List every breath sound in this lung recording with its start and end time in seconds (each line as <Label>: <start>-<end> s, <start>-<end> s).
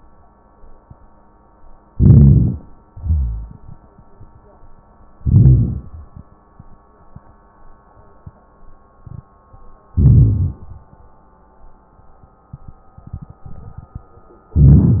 Inhalation: 1.91-2.62 s, 5.20-5.93 s, 9.96-10.64 s, 14.58-15.00 s
Exhalation: 2.88-3.61 s
Wheeze: 2.88-3.61 s